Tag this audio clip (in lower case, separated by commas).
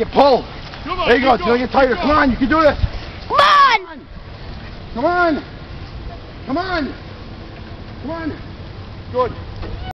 speech